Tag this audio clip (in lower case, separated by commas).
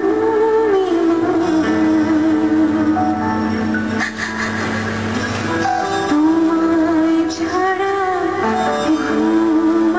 music, female singing